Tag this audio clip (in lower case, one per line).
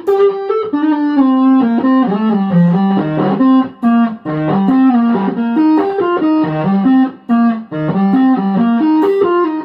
electric guitar
music
plucked string instrument
strum
guitar
musical instrument
bass guitar